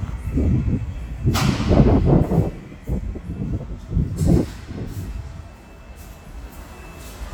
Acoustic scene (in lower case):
subway station